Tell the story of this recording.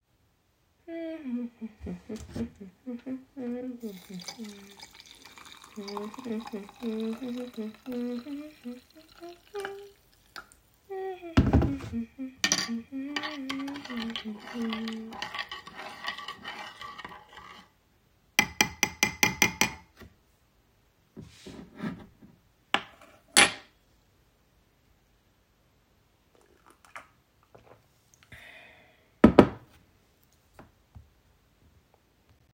I was humming while pouring water into a cup to make coffee. Then I stirred the drink with a spoon and tapped the spoon on the edge of the cup. I placed the spoon on the table and then picked the cup up to take a sip.